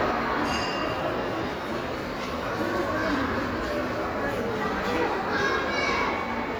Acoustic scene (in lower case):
crowded indoor space